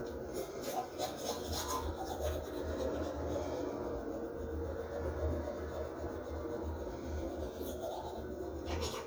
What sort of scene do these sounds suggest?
restroom